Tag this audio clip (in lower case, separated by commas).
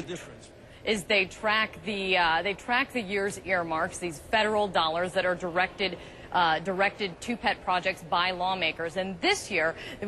speech